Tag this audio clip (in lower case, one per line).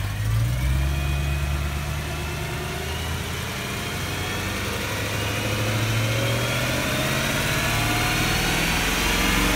medium engine (mid frequency)
accelerating
engine